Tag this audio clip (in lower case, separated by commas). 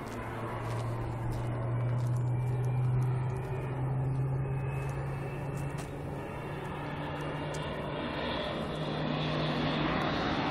aircraft, outside, urban or man-made, aircraft engine, vehicle